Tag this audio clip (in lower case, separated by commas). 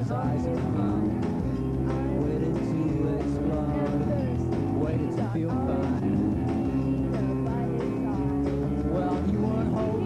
music, speech